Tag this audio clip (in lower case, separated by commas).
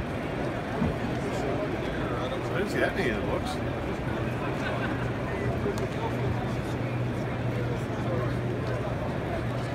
speech